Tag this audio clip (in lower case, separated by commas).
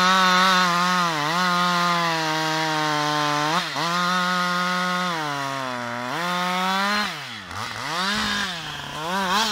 chainsawing trees